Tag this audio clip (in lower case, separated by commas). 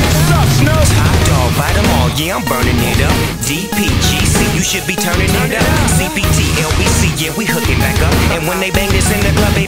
strum, guitar, electric guitar, music, musical instrument, plucked string instrument